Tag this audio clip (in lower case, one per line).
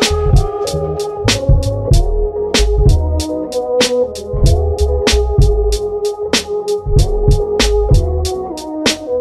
music